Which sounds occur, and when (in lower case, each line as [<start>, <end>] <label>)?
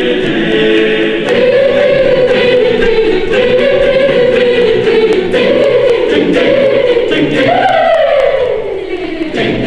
[0.01, 9.65] music
[0.03, 9.65] choir